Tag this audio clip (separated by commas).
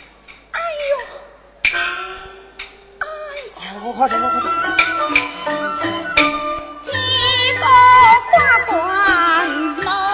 inside a large room or hall, Speech, Music, Opera